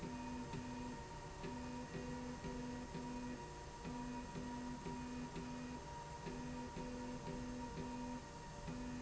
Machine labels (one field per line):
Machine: slide rail